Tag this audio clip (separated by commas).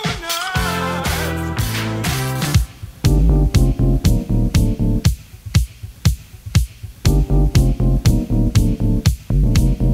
Disco, Music